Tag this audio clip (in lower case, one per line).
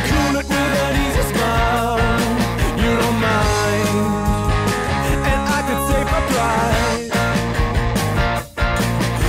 music